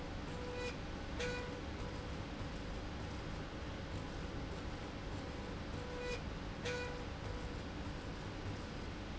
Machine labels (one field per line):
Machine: slide rail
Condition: normal